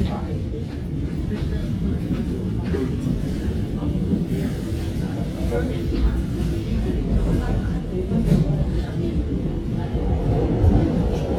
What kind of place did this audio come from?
subway train